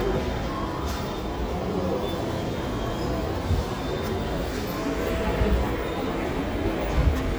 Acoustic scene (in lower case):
subway station